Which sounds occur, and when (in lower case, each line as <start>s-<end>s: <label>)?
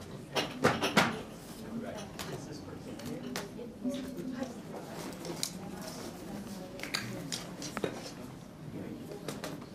0.0s-9.7s: background noise
0.0s-9.7s: hubbub
0.3s-1.2s: clickety-clack
1.3s-1.6s: surface contact
1.7s-3.2s: male speech
1.7s-2.3s: woman speaking
1.9s-2.4s: generic impact sounds
2.9s-3.1s: generic impact sounds
3.3s-3.4s: generic impact sounds
3.5s-4.4s: woman speaking
3.8s-8.1s: writing
4.4s-4.5s: generic impact sounds
5.3s-5.5s: tick
5.5s-6.5s: woman speaking
6.9s-7.1s: generic impact sounds
7.0s-7.3s: human voice
7.2s-7.4s: generic impact sounds
7.7s-7.9s: generic impact sounds
8.9s-9.7s: male speech
9.2s-9.6s: generic impact sounds